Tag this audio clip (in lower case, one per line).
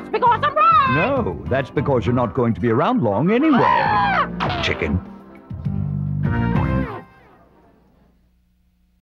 speech
music